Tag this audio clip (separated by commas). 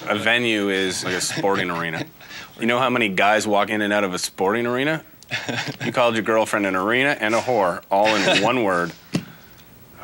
Speech